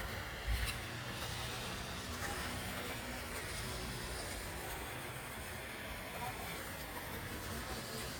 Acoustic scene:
park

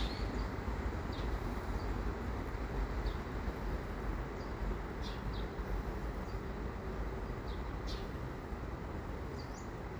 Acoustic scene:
park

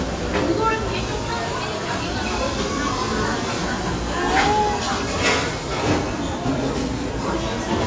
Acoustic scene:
restaurant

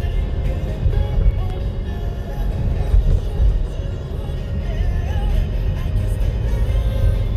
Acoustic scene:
car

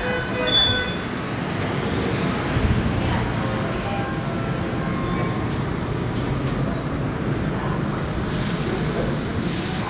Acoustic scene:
subway station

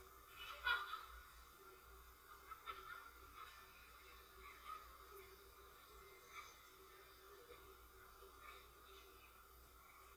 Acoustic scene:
residential area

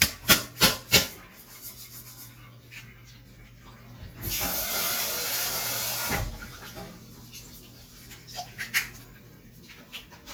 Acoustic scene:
kitchen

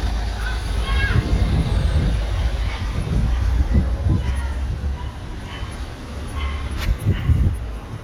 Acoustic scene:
residential area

